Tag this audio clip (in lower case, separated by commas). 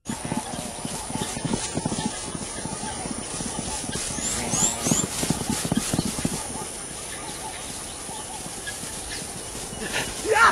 cheetah chirrup